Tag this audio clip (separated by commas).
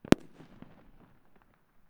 Fireworks, Explosion